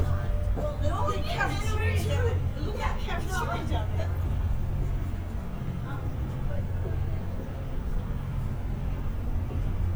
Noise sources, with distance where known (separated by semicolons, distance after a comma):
person or small group talking, near